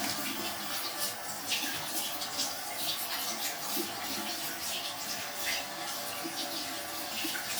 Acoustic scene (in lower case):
restroom